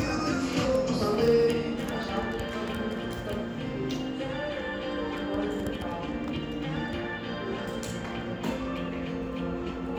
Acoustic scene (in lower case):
cafe